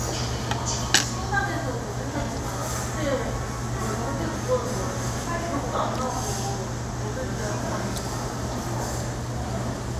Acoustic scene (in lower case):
restaurant